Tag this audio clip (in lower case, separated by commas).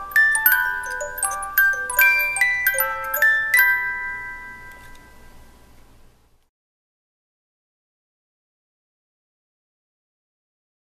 music, wedding music